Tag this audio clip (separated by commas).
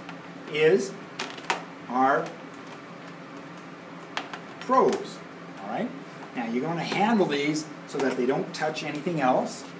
Speech, inside a small room